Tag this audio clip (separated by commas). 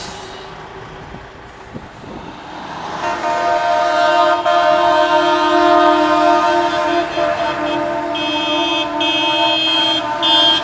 Truck, Vehicle